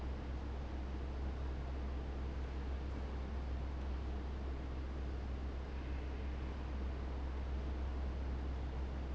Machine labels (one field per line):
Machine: fan